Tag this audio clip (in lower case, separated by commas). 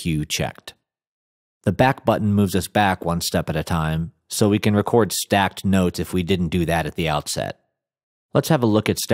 speech